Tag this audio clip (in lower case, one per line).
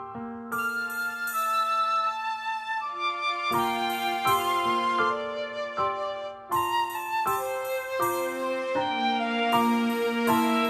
music